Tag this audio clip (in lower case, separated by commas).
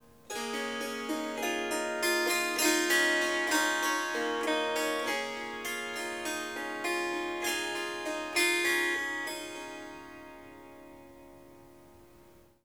music, musical instrument, harp